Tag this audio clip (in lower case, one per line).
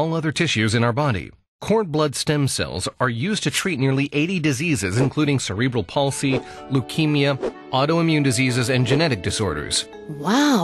music
speech